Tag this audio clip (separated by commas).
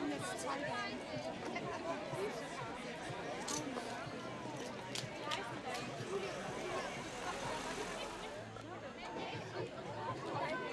Speech